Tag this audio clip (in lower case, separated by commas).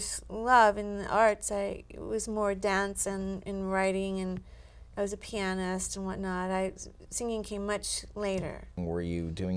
speech